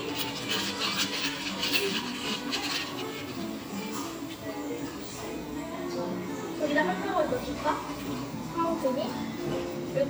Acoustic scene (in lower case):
cafe